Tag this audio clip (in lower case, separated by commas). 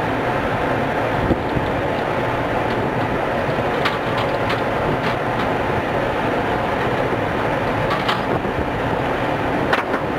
firing cannon